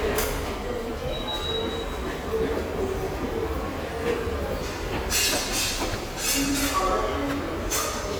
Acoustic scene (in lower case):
subway station